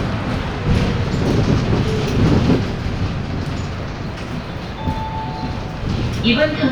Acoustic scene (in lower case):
bus